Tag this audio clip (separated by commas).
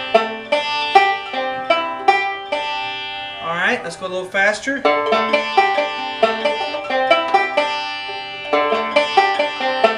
Music, Banjo, Speech